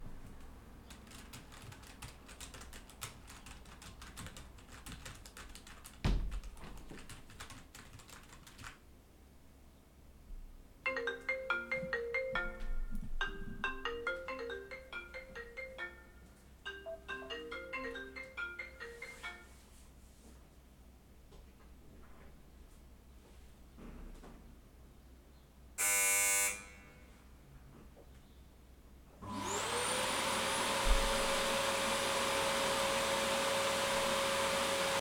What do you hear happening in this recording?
Keyboard typing began with a partial overlap of a window being closed. A phone then rang with a Samsung ringtone, followed by the doorbell ringing. Finally, the vacuum cleaner was started and left running.